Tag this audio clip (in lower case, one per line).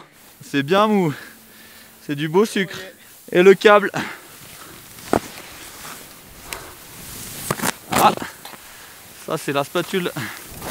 skiing